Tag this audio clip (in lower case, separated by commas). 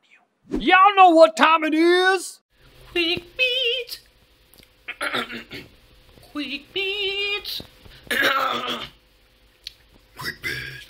speech